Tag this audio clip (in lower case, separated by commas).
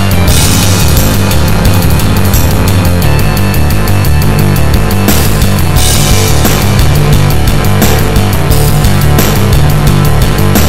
music